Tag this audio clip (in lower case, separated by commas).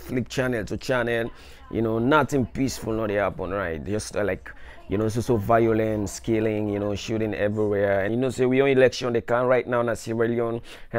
speech